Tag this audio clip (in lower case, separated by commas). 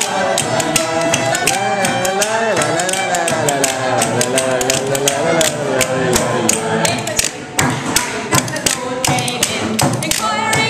singing, music, musical instrument